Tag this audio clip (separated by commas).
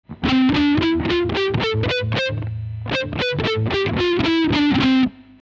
Electric guitar, Guitar, Musical instrument, Music, Plucked string instrument